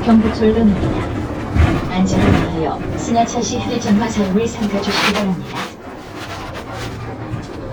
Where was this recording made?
on a bus